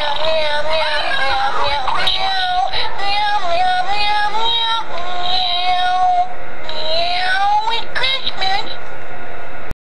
A person is singing and talking while making meow sounds